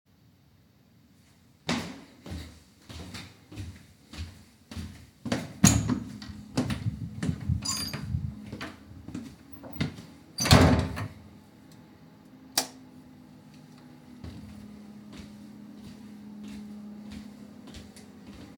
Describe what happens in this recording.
While typing on my keyboard, I simultaneously jingle my keys in my hand.